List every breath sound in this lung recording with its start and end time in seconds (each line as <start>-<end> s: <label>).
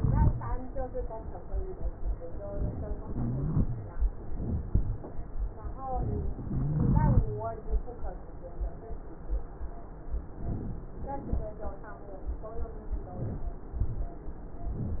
0.00-0.51 s: rhonchi
3.07-4.00 s: inhalation
3.07-4.00 s: rhonchi
6.45-7.59 s: inhalation
6.45-7.59 s: rhonchi